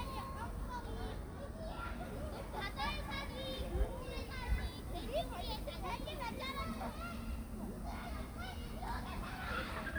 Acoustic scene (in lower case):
park